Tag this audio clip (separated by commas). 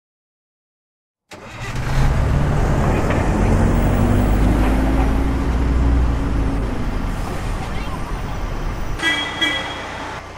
Bus